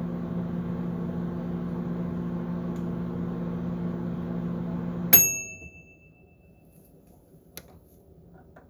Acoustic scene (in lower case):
kitchen